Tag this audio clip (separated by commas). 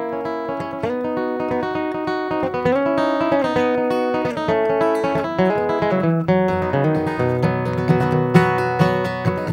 Music, Musical instrument, Classical music